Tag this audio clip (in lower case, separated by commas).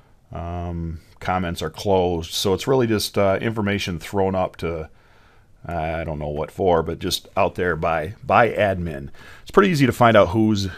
speech